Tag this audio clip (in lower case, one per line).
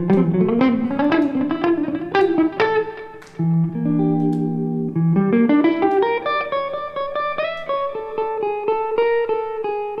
jazz
music